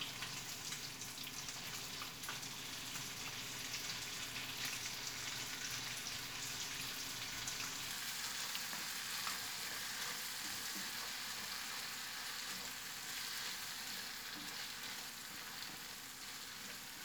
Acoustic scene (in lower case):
kitchen